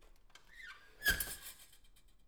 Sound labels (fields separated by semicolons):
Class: window; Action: opening